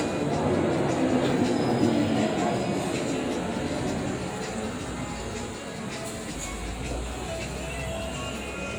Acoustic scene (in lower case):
street